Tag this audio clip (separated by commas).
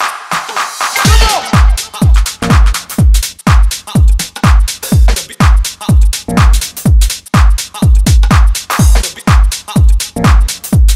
Music